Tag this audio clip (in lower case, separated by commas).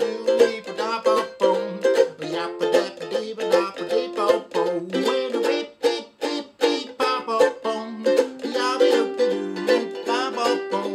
music, ukulele, inside a small room